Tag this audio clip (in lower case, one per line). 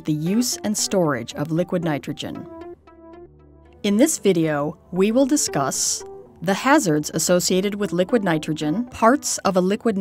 music
speech